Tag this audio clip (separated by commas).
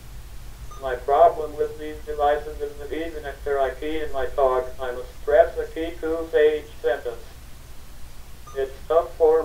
Speech